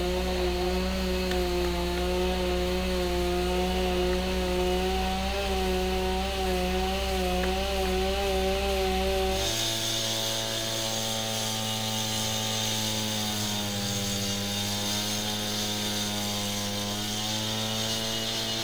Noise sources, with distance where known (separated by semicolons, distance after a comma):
unidentified powered saw, near